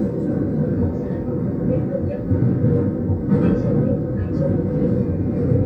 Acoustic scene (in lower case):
subway train